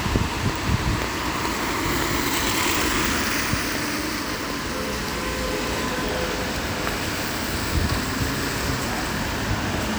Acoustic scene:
street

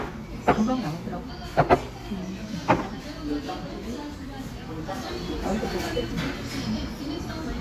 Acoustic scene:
restaurant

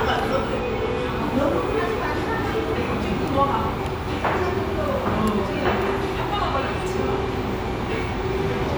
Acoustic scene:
restaurant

